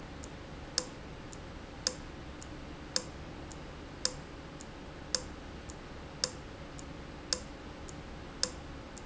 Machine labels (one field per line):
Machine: valve